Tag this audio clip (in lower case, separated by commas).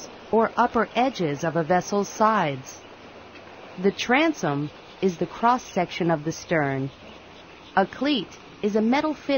speech